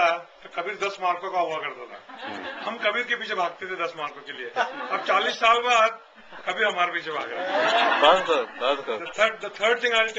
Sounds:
speech

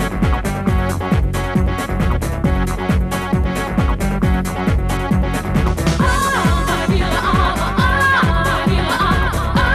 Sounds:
disco

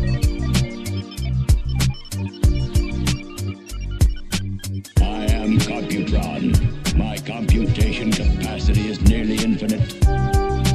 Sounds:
speech, music

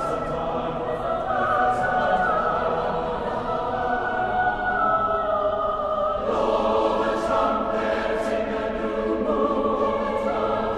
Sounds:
singing choir

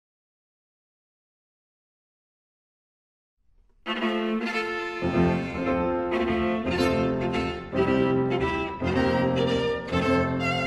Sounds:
music, violin, bowed string instrument, double bass, musical instrument

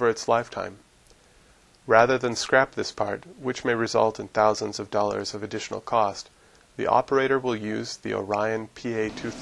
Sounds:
arc welding

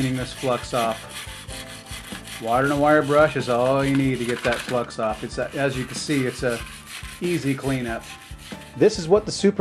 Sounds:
speech, tools, music

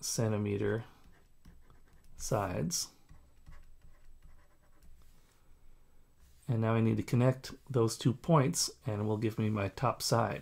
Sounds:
speech, writing

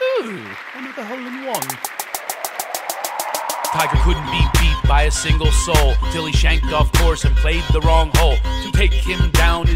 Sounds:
music, speech

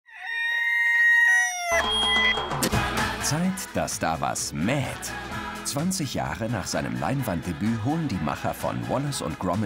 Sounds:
music, speech

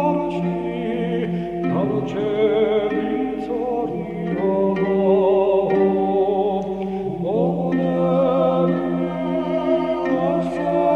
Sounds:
music, chant

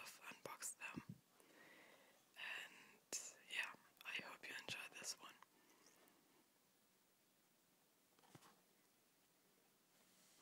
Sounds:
speech

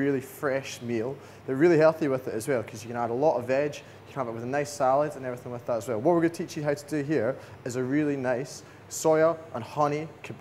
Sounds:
speech

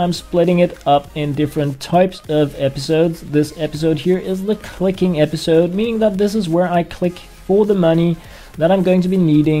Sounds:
speech, music

